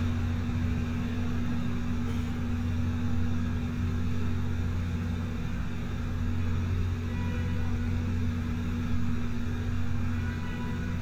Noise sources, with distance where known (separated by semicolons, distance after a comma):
engine of unclear size; car horn, far